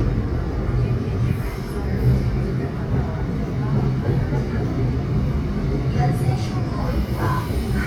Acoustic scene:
subway train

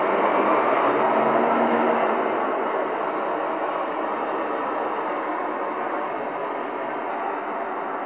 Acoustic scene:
street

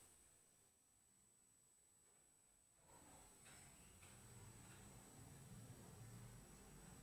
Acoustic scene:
elevator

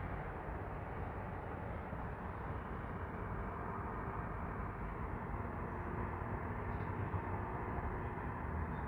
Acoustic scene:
street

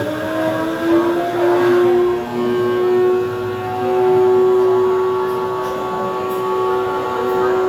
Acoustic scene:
cafe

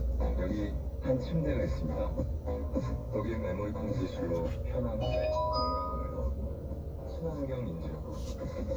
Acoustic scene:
car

